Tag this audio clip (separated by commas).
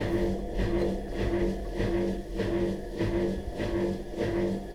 Engine